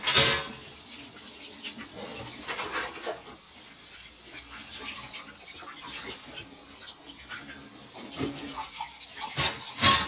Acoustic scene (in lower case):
kitchen